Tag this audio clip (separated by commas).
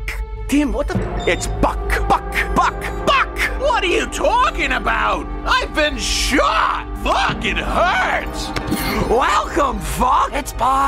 Music, Speech